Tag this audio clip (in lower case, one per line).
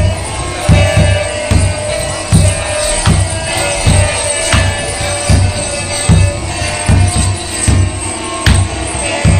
tambourine